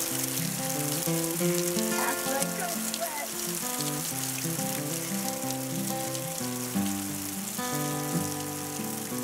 A guitar playing and people talking in the background and water drizzling